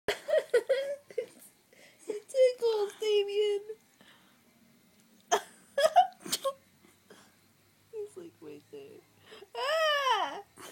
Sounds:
speech

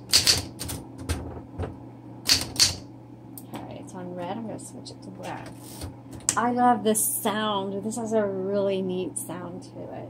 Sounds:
typing on typewriter

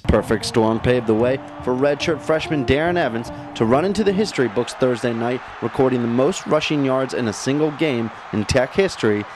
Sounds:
music
speech

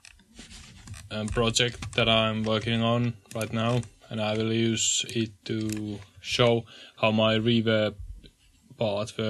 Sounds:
speech

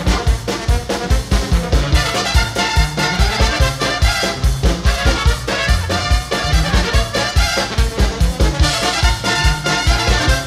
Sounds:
funny music
music

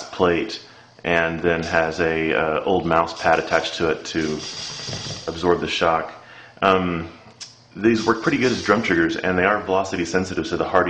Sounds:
speech

